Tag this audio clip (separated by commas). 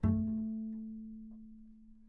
Music, Bowed string instrument, Musical instrument